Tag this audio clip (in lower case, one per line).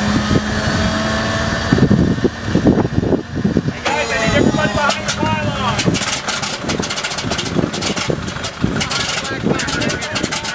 heavy engine (low frequency)
speech
vehicle